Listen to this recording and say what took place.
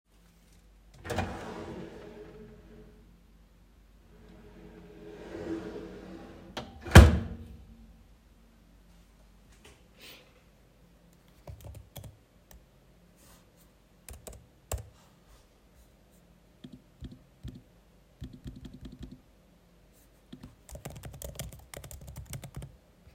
I opened the drawer, closed the drawer. I started typing on my laptop keyboard.